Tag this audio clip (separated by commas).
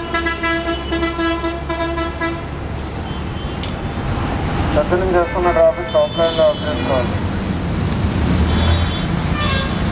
Speech